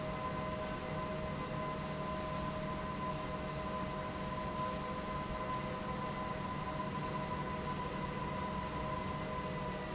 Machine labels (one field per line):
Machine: pump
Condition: normal